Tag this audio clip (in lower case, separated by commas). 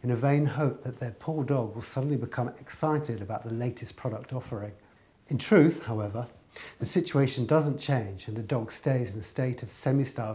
speech